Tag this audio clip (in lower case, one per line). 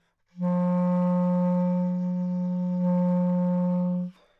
woodwind instrument
musical instrument
music